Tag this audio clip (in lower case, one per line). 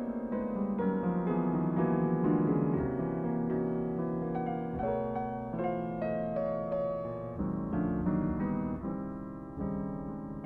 keyboard (musical)
piano